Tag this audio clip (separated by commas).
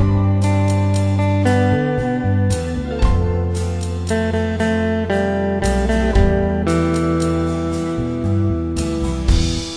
Musical instrument, Acoustic guitar, Music, Guitar